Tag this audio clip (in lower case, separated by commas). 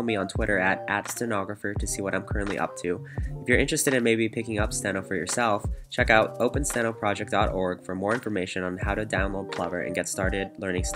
typing on typewriter